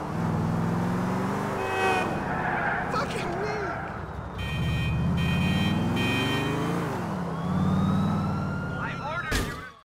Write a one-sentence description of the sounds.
Traffic noise honking tires squealing someone speak in followed by car honking and engines roving